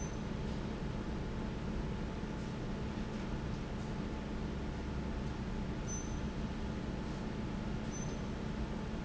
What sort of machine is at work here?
fan